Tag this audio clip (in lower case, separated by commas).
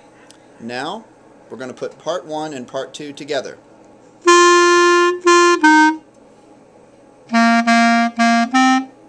playing clarinet